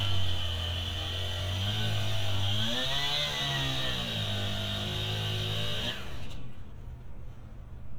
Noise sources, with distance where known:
chainsaw, near

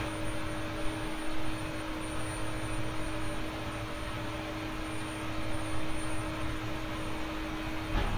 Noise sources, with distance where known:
large-sounding engine, near

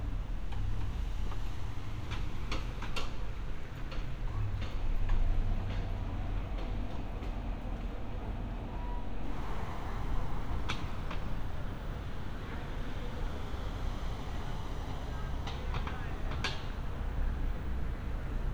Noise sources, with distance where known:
non-machinery impact

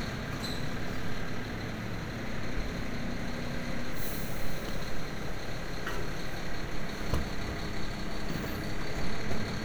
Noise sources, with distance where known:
large-sounding engine, near

